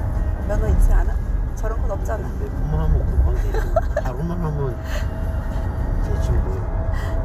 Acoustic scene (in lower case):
car